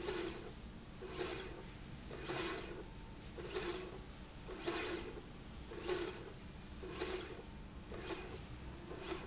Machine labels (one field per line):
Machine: slide rail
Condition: normal